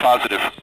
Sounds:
Male speech, Speech, Human voice

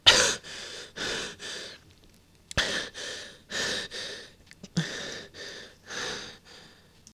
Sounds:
Breathing, Respiratory sounds

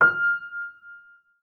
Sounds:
Musical instrument, Music, Piano, Keyboard (musical)

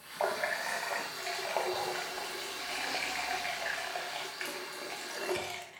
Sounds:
home sounds, Water tap

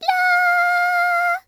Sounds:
Female singing, Human voice, Singing

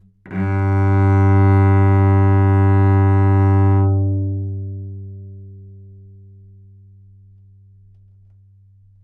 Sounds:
Music, Musical instrument, Bowed string instrument

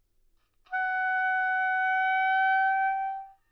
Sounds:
Music, Musical instrument, woodwind instrument

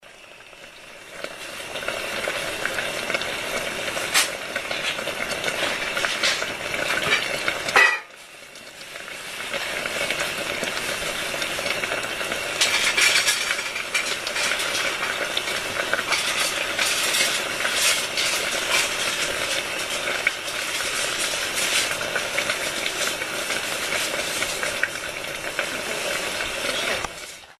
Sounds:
Frying (food), home sounds

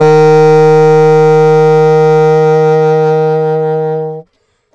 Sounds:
Wind instrument, Music, Musical instrument

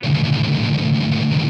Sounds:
Music, Guitar, Strum, Musical instrument, Plucked string instrument

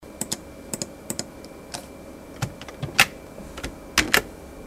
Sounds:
Computer keyboard, Typing, Domestic sounds

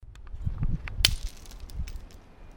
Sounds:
Crushing, Shatter, Glass

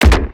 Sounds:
Gunshot, Explosion

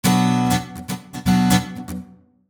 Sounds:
Plucked string instrument, Music, Musical instrument, Guitar

